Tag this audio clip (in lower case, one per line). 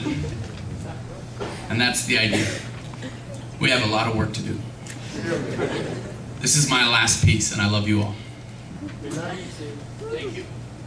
speech